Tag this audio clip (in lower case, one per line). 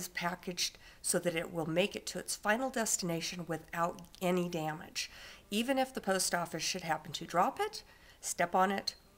speech